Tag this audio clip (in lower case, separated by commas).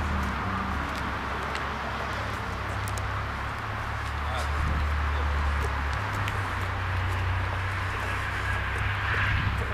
car, vehicle, speech